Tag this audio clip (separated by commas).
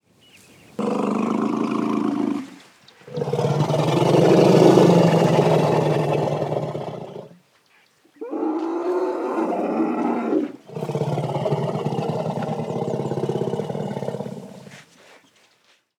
Growling, Animal